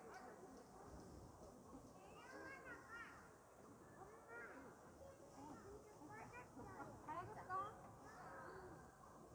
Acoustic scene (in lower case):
park